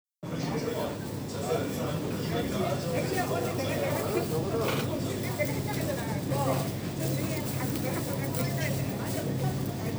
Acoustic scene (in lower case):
crowded indoor space